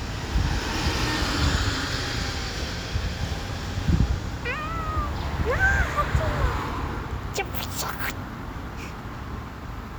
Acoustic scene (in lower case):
street